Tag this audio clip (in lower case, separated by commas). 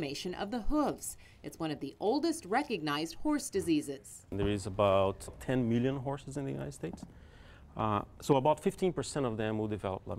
speech